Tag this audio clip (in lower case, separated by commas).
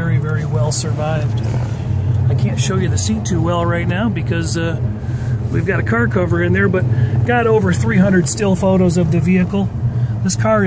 vehicle, speech, car